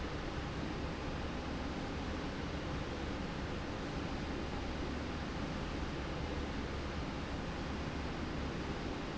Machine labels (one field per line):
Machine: slide rail